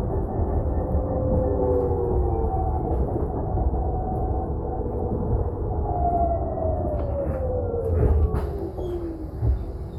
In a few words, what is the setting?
bus